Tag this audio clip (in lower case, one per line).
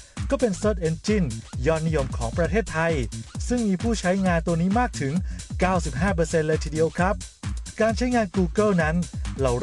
music
speech